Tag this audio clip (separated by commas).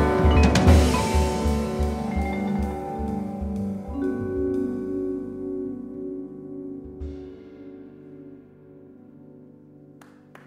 Classical music, Music